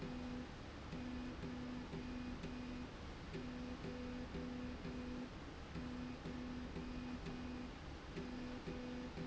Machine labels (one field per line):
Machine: slide rail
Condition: normal